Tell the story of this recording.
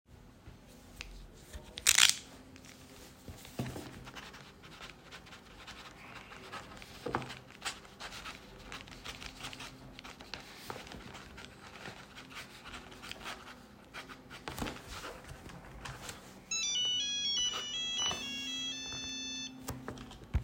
I sit in the bedroom and write notes on paper. While writing my phone suddenly starts ringing next to me.